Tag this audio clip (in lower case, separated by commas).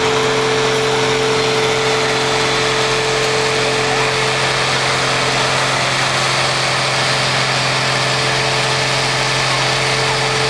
vehicle